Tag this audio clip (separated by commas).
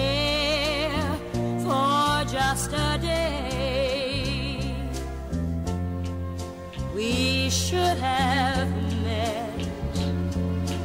Music